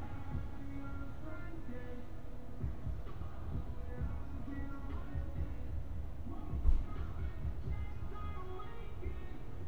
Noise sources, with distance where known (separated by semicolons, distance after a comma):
music from an unclear source, far